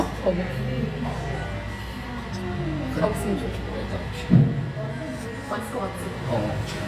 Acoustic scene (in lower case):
cafe